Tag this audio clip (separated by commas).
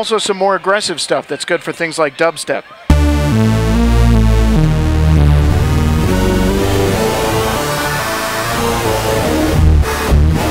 playing synthesizer